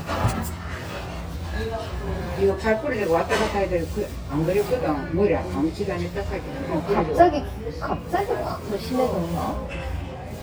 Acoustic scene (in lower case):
restaurant